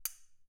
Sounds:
cutlery, home sounds

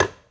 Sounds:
tap

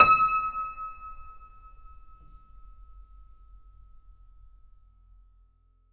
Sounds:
music, piano, musical instrument, keyboard (musical)

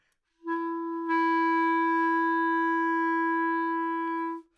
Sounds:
musical instrument, woodwind instrument, music

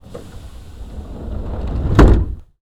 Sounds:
vehicle, subway, rail transport

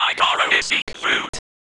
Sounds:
whispering, human voice

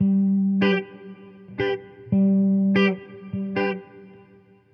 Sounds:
electric guitar, musical instrument, music, guitar, plucked string instrument

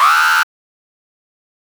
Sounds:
alarm

